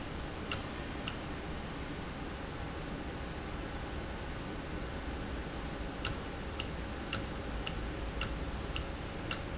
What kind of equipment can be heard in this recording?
valve